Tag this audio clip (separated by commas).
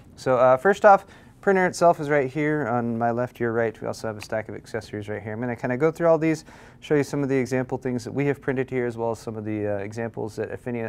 Speech